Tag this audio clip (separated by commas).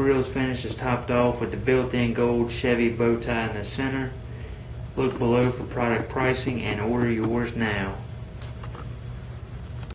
Speech